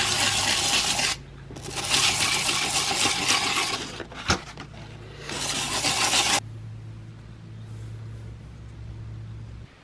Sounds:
sharpen knife

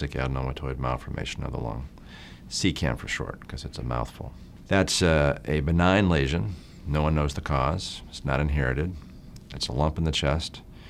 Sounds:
Speech

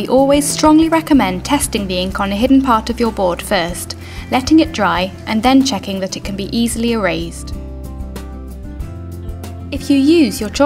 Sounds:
Music, Speech

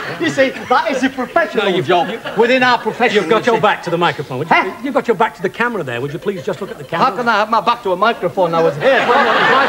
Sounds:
Speech

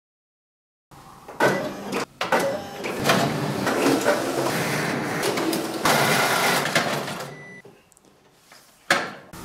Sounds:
printer printing, Printer

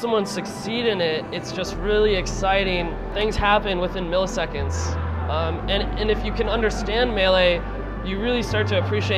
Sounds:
Speech, Music

